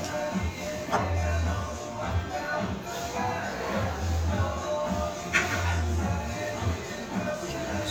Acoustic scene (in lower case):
restaurant